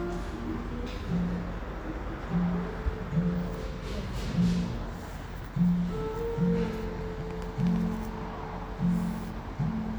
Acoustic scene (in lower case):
cafe